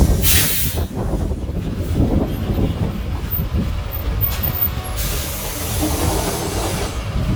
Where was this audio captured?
on a street